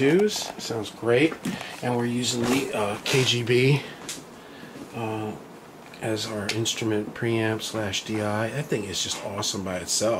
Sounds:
Speech

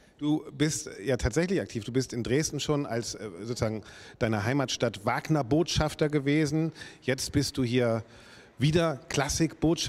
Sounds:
Speech

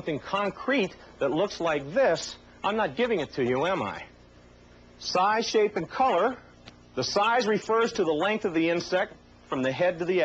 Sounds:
Speech

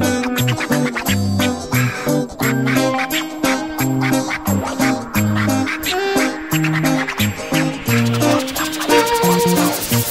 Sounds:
Music

